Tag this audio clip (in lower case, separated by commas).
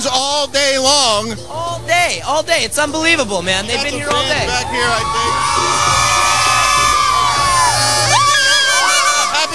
speech, music